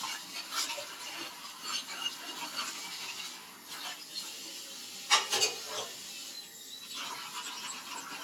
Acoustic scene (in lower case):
kitchen